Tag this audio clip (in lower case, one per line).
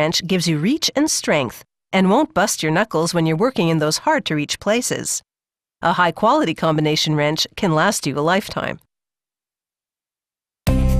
speech